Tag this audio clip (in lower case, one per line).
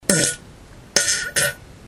fart